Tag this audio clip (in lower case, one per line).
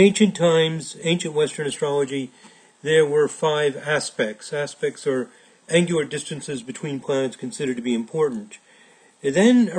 speech